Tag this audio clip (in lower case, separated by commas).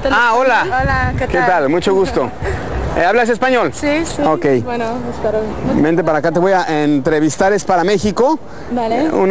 speech